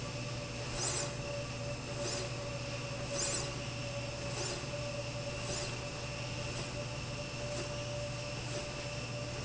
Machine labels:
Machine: slide rail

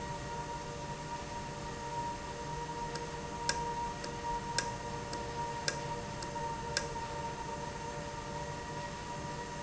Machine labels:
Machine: valve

